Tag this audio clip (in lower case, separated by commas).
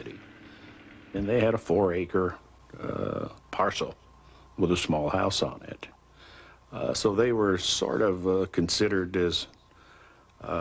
male speech, speech, monologue